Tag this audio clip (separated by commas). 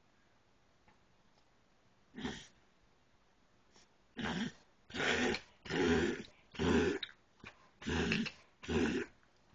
pets, Animal, Throat clearing, Dog